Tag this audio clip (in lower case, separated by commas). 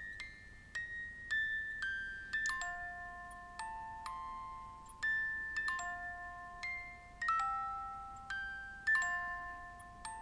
music, jingle (music)